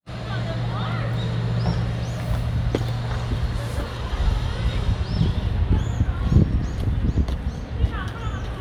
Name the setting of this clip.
residential area